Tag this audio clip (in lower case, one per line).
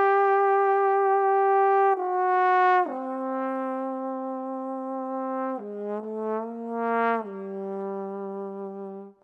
playing trombone